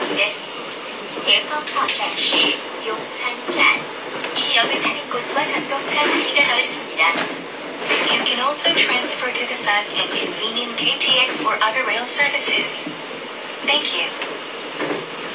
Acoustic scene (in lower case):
subway train